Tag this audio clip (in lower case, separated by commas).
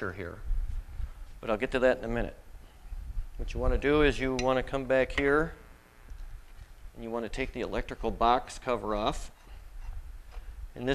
speech